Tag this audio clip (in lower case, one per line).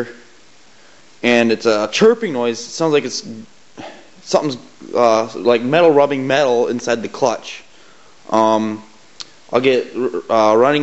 white noise
speech